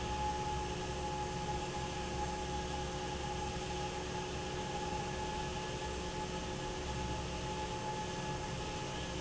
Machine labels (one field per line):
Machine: fan